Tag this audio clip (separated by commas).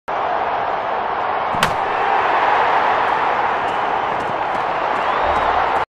Run